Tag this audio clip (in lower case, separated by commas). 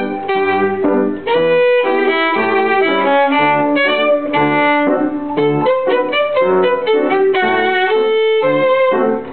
violin, music, musical instrument